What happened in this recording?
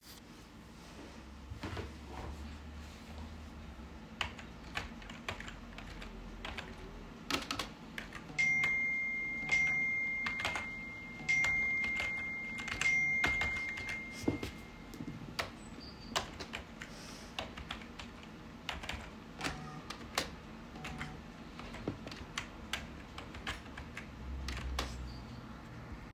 I sat on my chair and typed on my computer keyboard. While I was typing, my phone got some notifications.